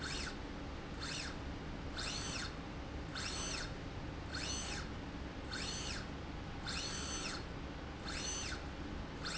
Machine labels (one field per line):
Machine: slide rail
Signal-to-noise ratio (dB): 0 dB